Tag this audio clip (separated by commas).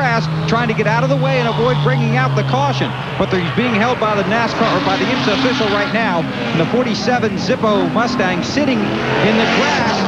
Speech, Vehicle, Medium engine (mid frequency), Engine, revving, Car